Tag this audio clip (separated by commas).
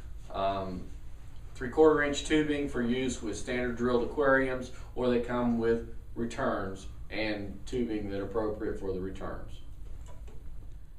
Speech